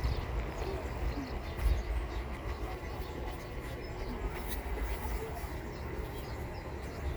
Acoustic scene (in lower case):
park